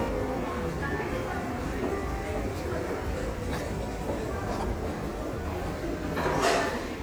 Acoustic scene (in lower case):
crowded indoor space